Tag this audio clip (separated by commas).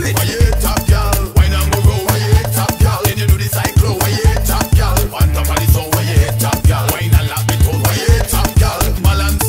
House music, Funk, Electronic music, Music